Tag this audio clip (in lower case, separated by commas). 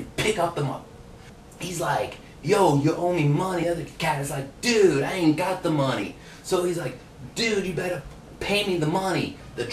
speech